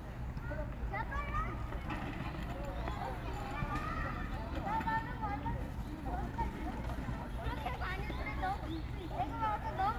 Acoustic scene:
park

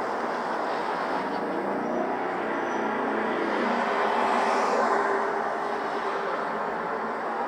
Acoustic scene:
street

